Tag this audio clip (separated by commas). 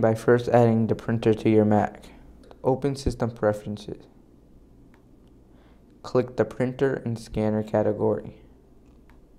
Speech